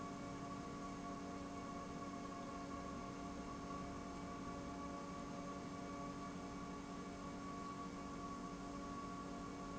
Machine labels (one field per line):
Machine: pump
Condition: normal